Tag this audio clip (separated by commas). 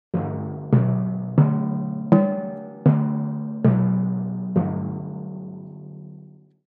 playing tympani